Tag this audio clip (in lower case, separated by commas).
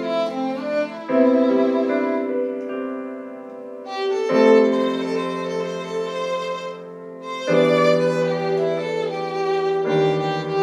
musical instrument, violin, music